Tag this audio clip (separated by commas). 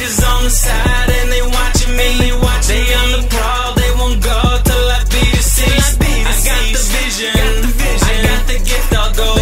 Music